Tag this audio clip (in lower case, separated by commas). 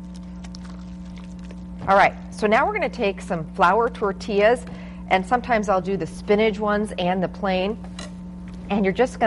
speech